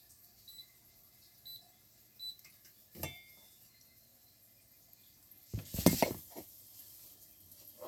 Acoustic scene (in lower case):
kitchen